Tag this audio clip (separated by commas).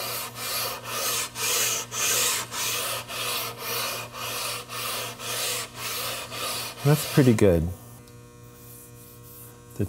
Rub, Filing (rasp)